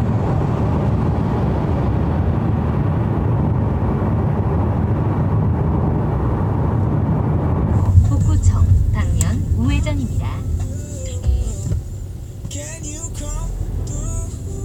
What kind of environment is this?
car